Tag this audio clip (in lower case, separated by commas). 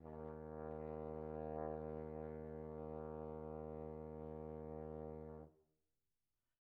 music, musical instrument, brass instrument